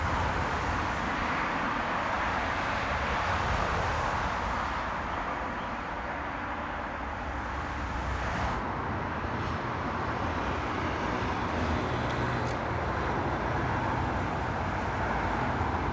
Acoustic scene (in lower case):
street